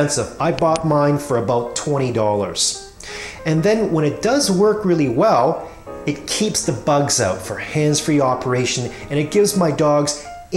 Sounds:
Speech, Music

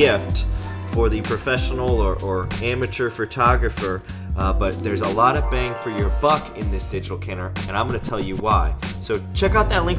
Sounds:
Speech, Music

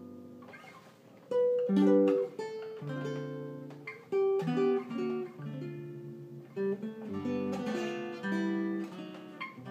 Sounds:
Guitar, Plucked string instrument, Ukulele, Musical instrument, Acoustic guitar, Music

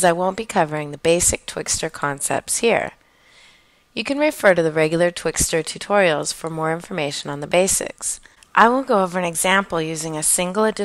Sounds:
Speech

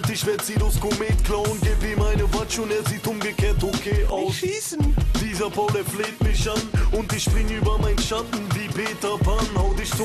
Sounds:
Music

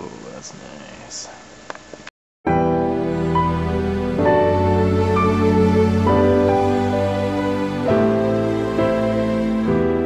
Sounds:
Music, Speech

